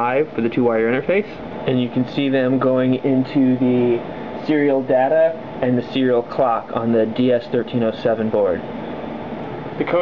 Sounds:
Speech

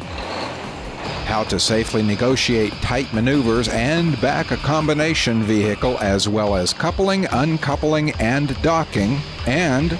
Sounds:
Speech, Vehicle

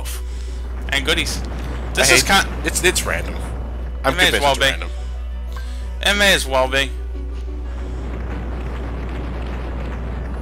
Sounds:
Music, Speech

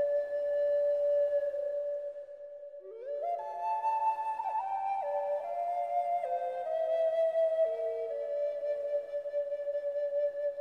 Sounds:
Flute, Music

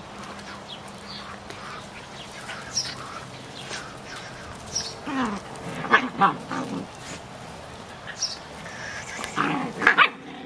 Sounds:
Bark, pets, Bow-wow, Dog, Animal

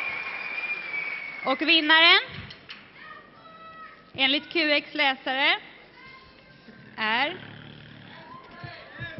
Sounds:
Speech

